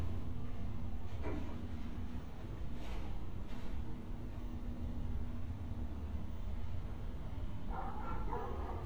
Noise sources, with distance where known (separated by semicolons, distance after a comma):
dog barking or whining